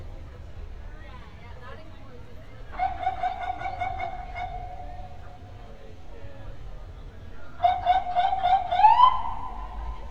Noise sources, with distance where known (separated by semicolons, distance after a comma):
siren, near; person or small group talking, near